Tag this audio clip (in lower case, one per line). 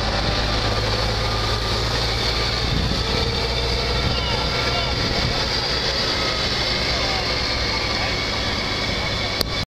speech
vehicle